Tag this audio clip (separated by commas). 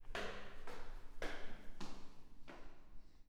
Walk